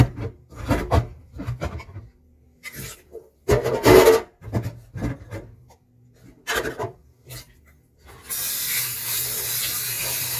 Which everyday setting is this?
kitchen